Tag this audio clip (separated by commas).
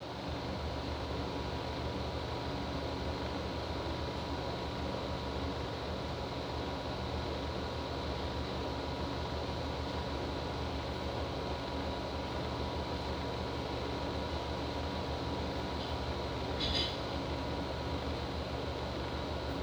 Mechanisms, Mechanical fan